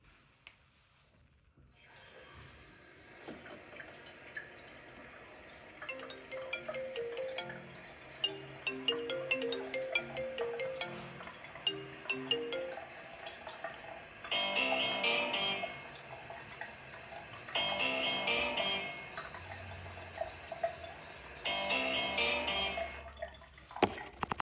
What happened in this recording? The device is placed on the kitchen counter. I turn on the faucet to let the water run, and while the water is running, my phone starts ringing on the table nearby.